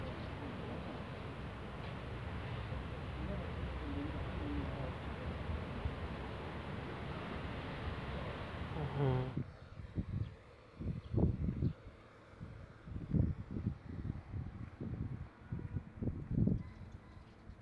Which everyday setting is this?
residential area